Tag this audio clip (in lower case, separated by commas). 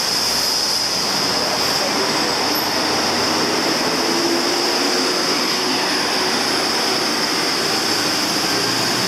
vehicle